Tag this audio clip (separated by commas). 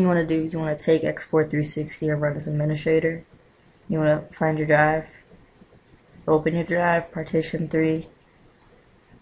Speech